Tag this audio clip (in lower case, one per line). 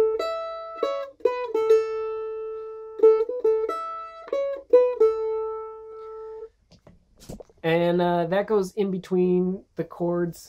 playing mandolin